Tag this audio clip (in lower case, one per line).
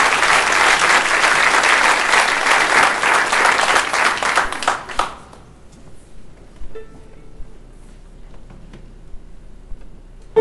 music